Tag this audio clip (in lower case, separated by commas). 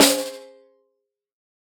music, snare drum, drum, percussion, musical instrument